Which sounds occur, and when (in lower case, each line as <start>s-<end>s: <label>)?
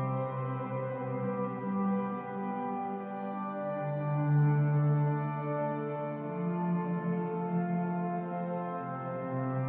0.0s-9.6s: music